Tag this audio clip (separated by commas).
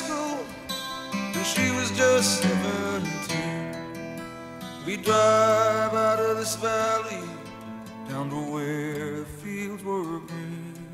Music, Dubstep